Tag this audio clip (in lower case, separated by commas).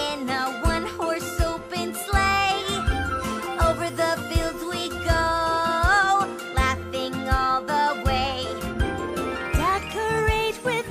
music, singing